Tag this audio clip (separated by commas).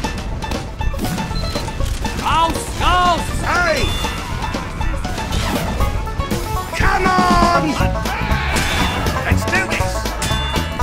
Music, Speech